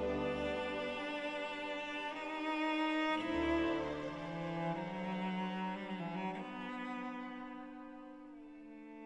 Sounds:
Cello, Music

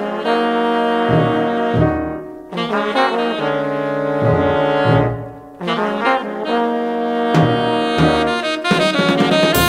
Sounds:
Jazz, Hip hop music, Music, French horn, Trumpet, Saxophone

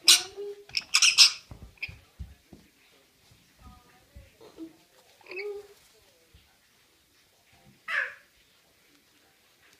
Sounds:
Animal, Speech, Domestic animals

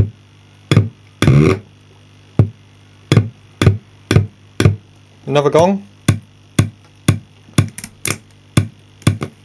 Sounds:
Speech, Drum machine

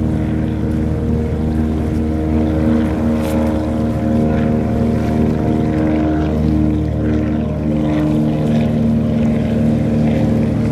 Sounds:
speedboat, Vehicle, speedboat acceleration, Water vehicle

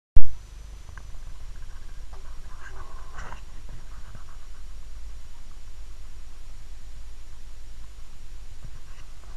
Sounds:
Silence

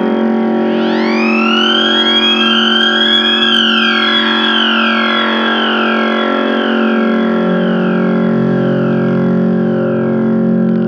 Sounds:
Siren, Theremin

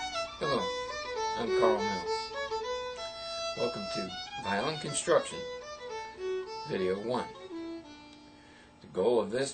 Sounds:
Speech, Music, Violin, Musical instrument

